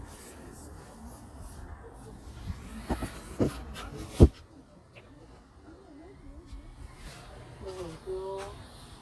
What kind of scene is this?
park